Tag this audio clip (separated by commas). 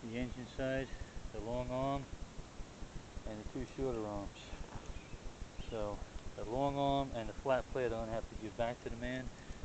Speech